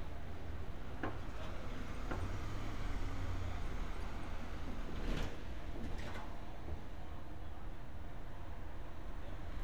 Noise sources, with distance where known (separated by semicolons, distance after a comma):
medium-sounding engine